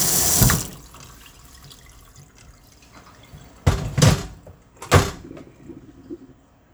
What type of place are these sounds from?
kitchen